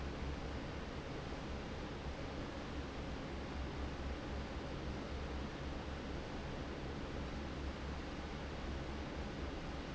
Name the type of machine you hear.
fan